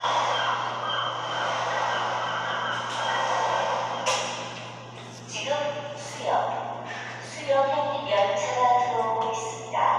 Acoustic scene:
subway station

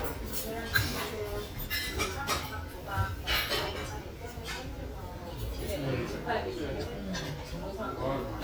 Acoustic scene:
restaurant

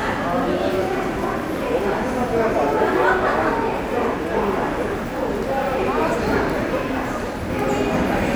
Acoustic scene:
subway station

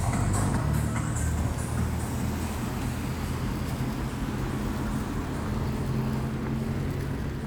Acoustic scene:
street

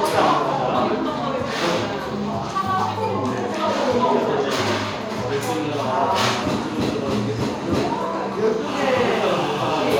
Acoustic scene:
cafe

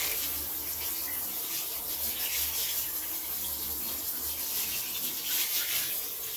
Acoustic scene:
restroom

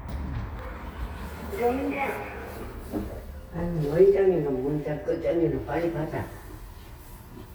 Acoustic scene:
elevator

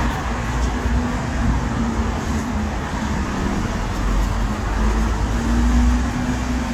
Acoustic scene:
street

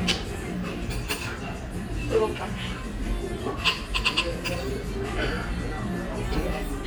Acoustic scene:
restaurant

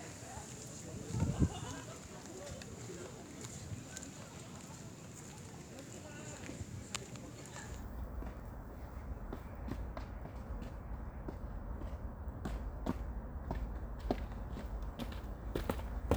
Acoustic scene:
park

